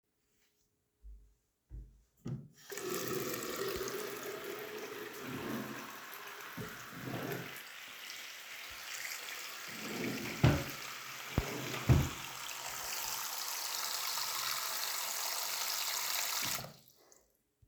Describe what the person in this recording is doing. I turned on the water. While the water was running i opened an closed drawer. After that i turned off the water.